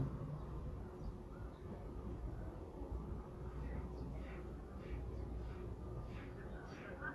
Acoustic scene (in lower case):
residential area